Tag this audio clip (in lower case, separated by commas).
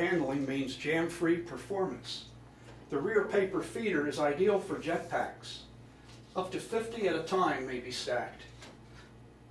speech